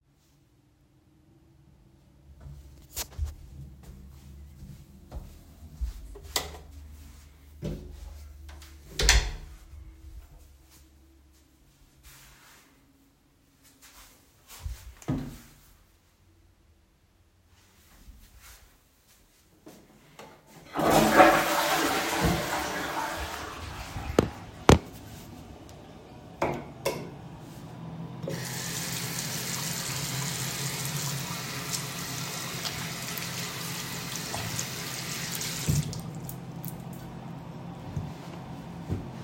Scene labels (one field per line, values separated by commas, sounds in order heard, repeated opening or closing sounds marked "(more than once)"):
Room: bathroom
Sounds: footsteps, light switch, toilet flushing, running water